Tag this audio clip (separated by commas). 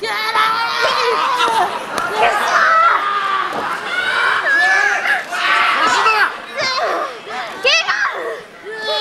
Chatter, inside a public space, Speech